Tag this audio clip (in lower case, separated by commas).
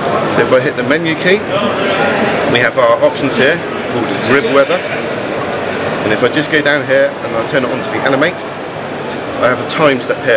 speech